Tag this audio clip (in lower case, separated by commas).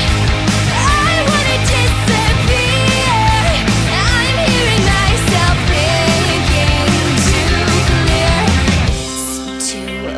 music, exciting music, jazz